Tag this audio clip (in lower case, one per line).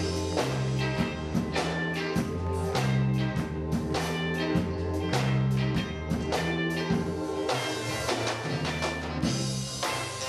music
gospel music